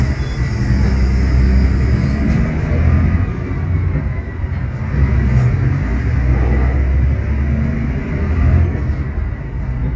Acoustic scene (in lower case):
bus